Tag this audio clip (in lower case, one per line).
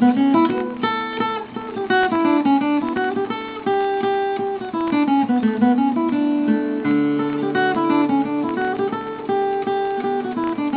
musical instrument
plucked string instrument
music
acoustic guitar
guitar